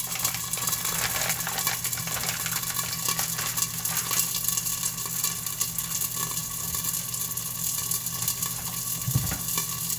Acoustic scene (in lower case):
kitchen